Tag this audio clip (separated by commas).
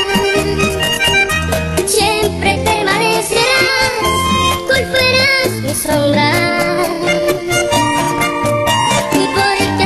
Music, Music of Latin America